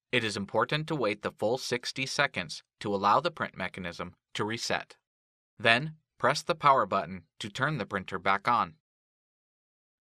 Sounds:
Speech

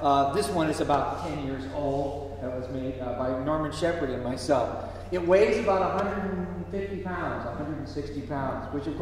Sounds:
Speech

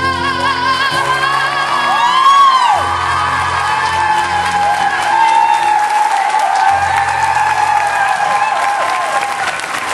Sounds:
Singing, Music, Applause

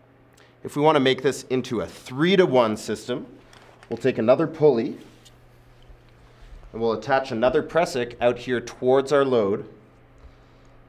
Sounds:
Speech

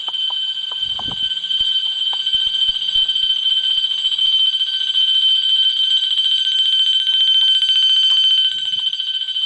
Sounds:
Alarm clock

